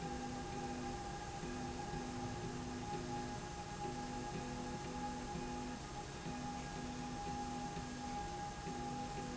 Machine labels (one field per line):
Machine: slide rail